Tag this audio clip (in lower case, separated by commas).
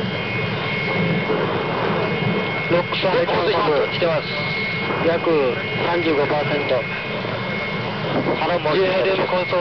speech